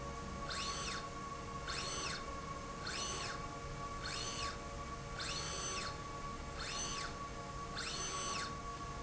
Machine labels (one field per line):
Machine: slide rail